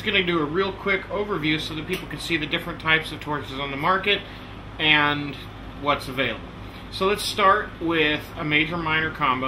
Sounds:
speech

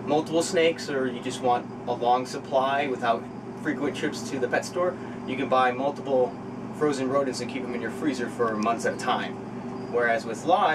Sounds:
speech
inside a small room

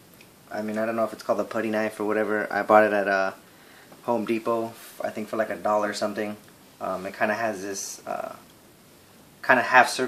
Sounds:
speech

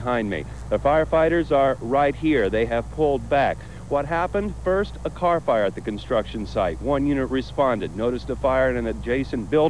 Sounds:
speech

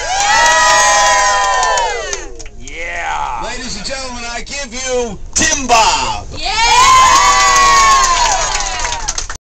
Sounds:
speech

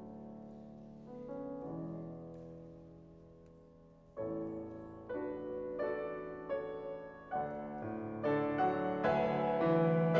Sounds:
music

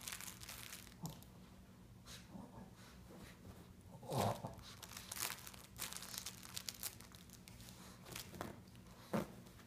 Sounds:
pets

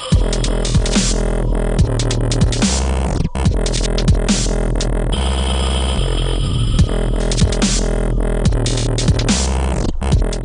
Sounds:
electronic music
music
dubstep

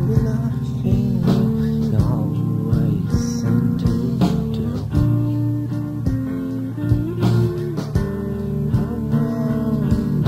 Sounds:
music

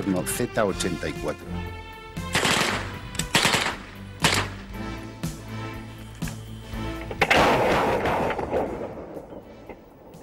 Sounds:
machine gun shooting
speech
machine gun
music

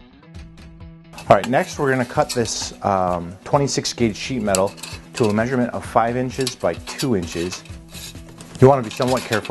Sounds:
speech

